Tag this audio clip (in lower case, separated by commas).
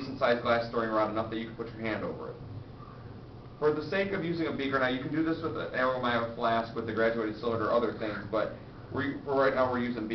speech